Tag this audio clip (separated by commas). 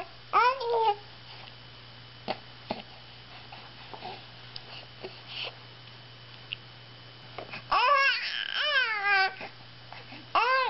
people babbling